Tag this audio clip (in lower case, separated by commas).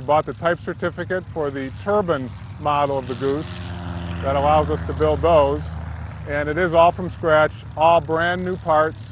speech